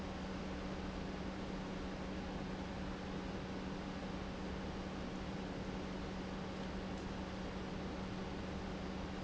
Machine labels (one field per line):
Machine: pump